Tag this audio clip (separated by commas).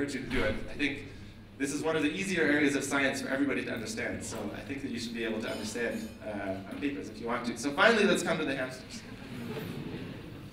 Male speech, Speech